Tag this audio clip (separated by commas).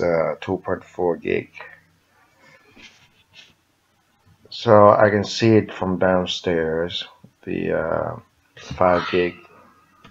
Speech